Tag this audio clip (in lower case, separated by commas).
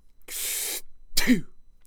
breathing, respiratory sounds